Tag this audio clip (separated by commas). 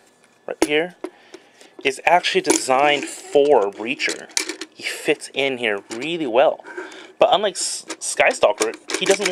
Speech